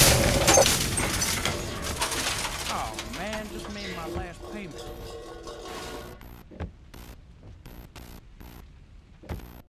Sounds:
speech

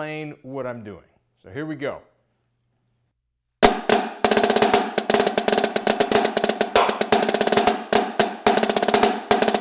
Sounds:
playing snare drum
drum roll
drum
percussion
snare drum
bass drum

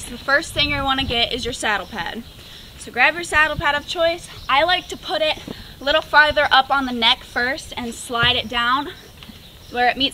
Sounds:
speech

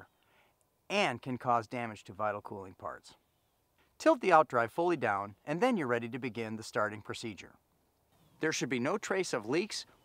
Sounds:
speech

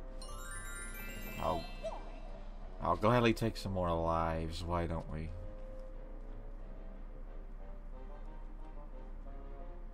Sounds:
speech
music

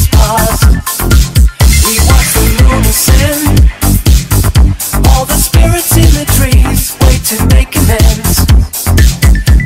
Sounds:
music
dance music

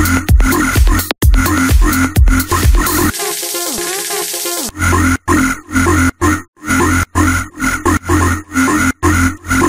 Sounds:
electronic dance music
electronic music
music

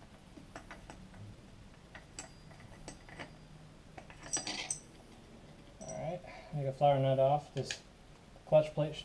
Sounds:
inside a small room
speech

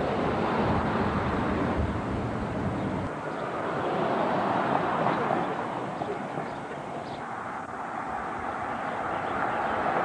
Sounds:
vehicle
car

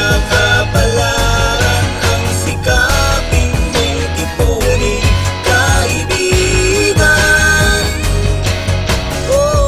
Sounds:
music

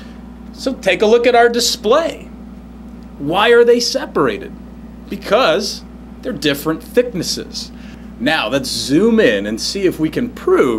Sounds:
speech

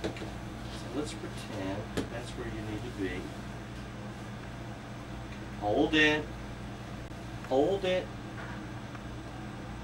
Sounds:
speech
inside a small room

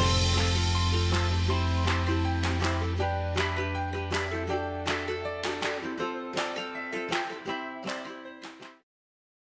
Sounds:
music

